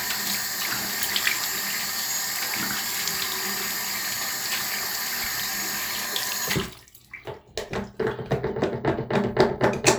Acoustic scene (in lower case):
restroom